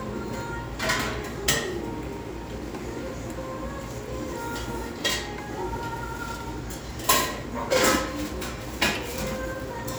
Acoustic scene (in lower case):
restaurant